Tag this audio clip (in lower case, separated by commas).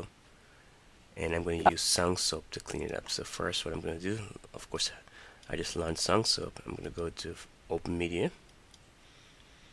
speech